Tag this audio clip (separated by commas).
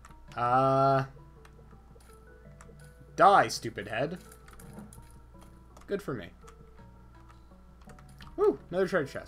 Music, Typing, Speech